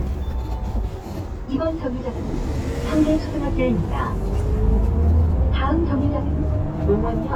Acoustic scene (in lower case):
bus